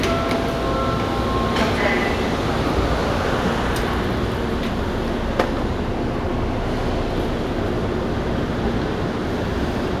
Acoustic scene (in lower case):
subway station